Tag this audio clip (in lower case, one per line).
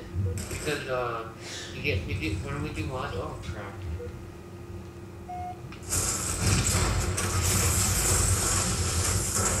speech